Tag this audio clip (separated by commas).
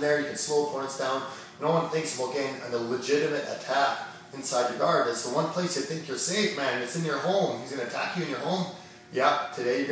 Speech